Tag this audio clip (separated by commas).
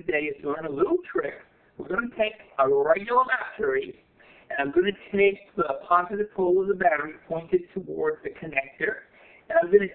Speech, inside a small room